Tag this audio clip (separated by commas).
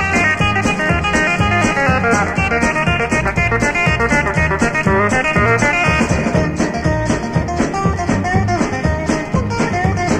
Music, Middle Eastern music